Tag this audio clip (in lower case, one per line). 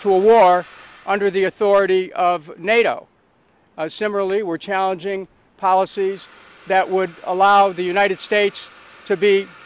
speech